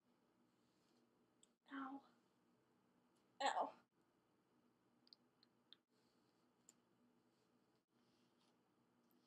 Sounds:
speech

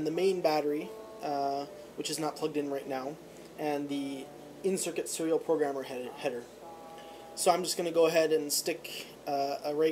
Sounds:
music
speech

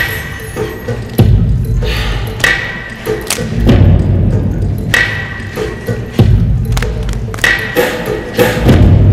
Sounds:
music

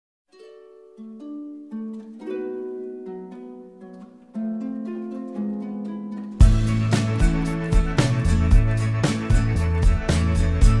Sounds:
harp

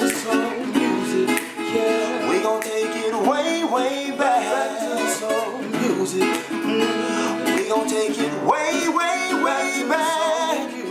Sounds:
music

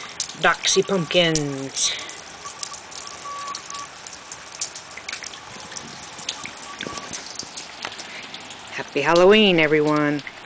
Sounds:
speech

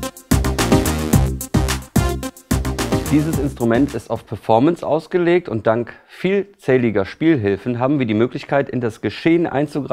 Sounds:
sampler
music
speech

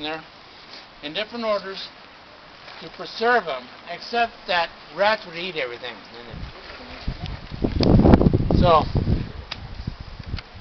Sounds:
speech

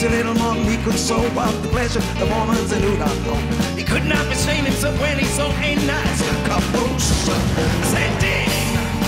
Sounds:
music

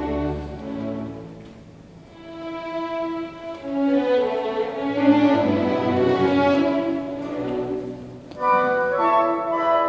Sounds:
violin
music
orchestra
musical instrument

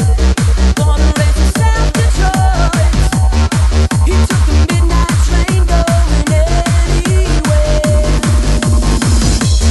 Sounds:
music

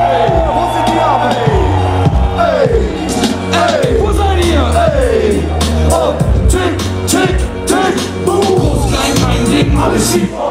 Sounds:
music

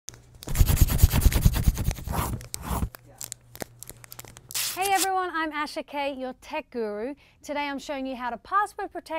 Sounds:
speech

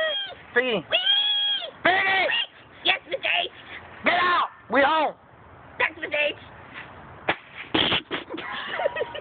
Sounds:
speech

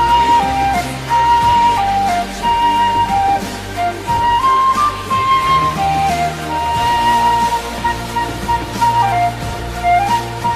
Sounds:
playing flute

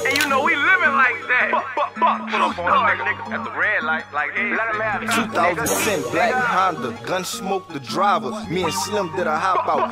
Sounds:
music

